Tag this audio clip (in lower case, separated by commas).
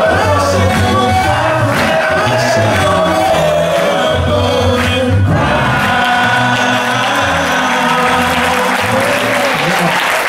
music, singing